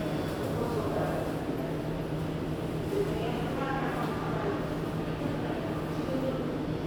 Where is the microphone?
in a subway station